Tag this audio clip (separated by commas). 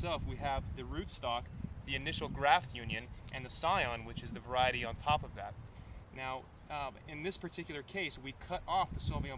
Speech